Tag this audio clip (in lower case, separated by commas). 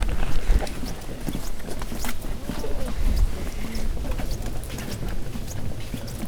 wild animals, bird call, bird, animal